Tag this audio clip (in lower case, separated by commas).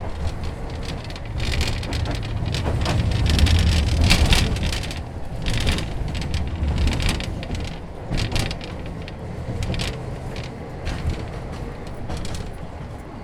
vehicle